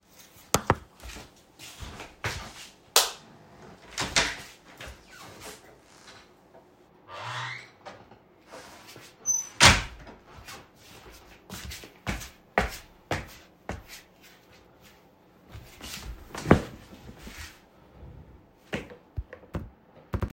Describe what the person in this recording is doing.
I walked through the livingroom, turned the lights off, opened the door and closed it after I left.